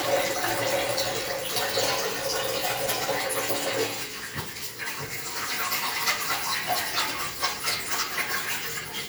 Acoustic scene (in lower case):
restroom